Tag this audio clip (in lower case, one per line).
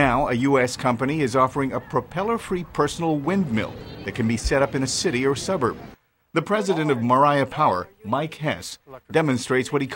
speech